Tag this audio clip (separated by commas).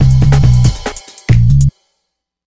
Musical instrument, Music, Percussion, Drum kit